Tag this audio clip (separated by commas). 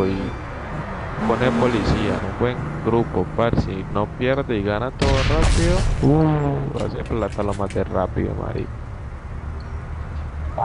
Speech